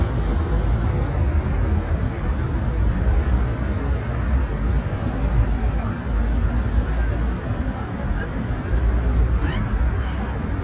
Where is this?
on a street